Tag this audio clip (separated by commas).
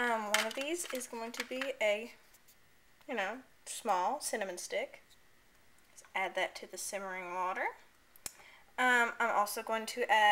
Speech, inside a small room